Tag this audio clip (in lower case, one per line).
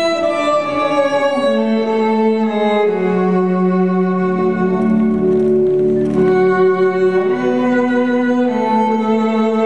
music